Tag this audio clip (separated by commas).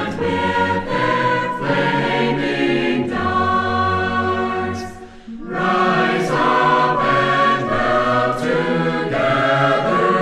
Music